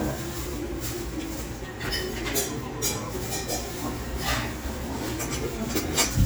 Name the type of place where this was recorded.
restaurant